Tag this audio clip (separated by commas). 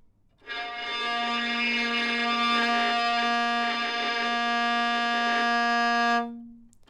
Music, Bowed string instrument, Musical instrument